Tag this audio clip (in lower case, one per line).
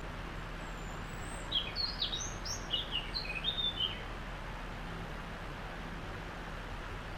wild animals
bird
animal